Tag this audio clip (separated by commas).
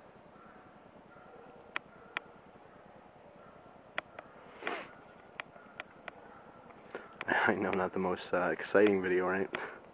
Speech